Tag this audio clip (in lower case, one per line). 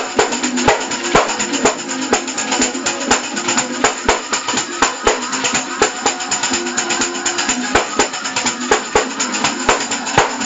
playing tambourine